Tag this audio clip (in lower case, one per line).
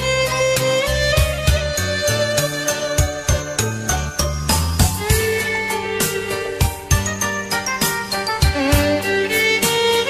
musical instrument
music
fiddle